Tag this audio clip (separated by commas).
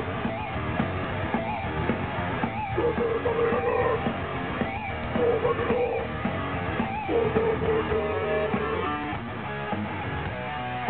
Music